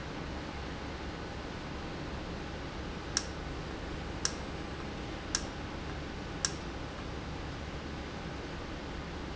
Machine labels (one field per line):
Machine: valve